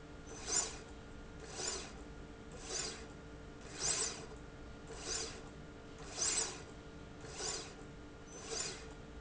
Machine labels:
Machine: slide rail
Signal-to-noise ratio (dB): 6 dB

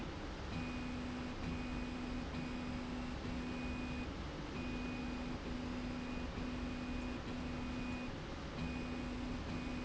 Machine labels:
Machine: slide rail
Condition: normal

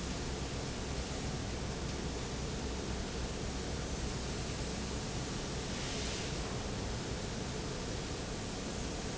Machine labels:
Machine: fan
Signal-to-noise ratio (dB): -6 dB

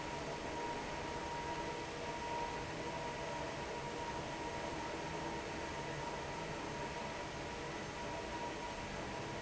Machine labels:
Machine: fan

